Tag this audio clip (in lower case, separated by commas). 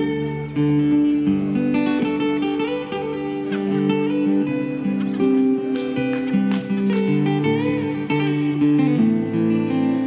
guitar, music, acoustic guitar, plucked string instrument, strum, musical instrument